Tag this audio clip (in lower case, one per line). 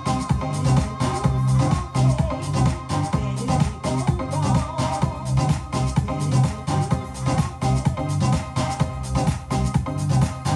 disco
music